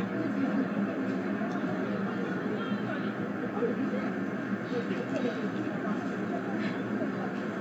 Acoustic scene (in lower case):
residential area